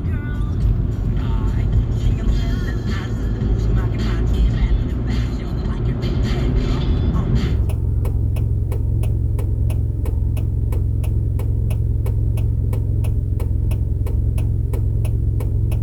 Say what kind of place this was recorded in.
car